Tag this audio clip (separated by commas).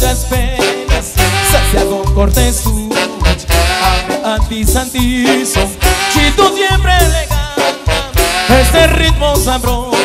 Musical instrument, Brass instrument, Music, xylophone, Orchestra